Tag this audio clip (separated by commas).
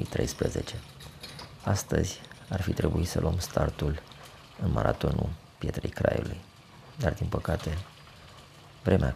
Speech